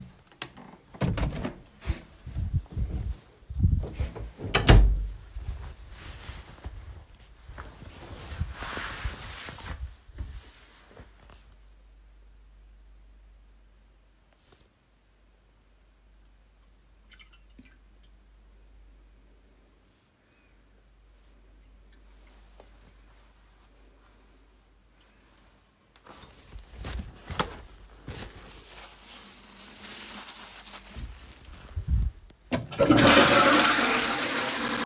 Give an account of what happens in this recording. I opend the bathroom door entered the bathroom and closed the door behind me. After a short moment I flushed the toilet.